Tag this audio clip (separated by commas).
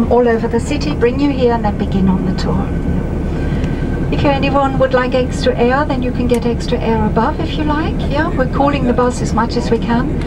Speech